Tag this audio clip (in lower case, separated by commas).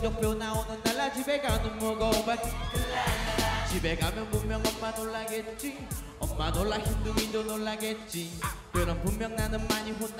music, funk